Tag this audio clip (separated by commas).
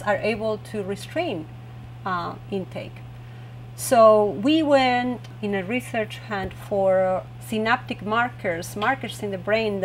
Speech